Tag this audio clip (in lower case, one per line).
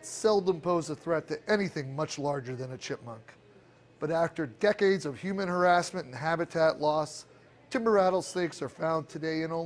speech